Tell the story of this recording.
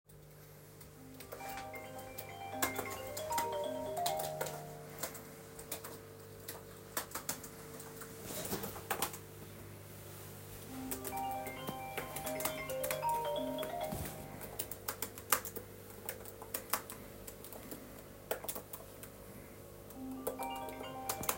Typing on the keyboard as the phone rings repeatedly.